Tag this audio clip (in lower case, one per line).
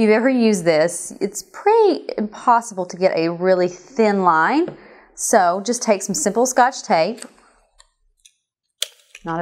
speech